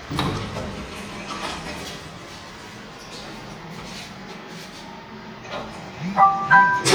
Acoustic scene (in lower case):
elevator